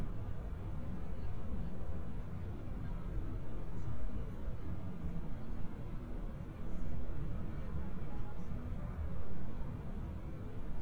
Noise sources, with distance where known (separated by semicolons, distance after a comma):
background noise